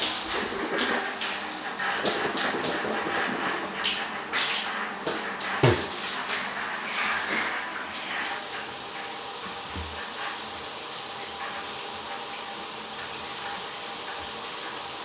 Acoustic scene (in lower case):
restroom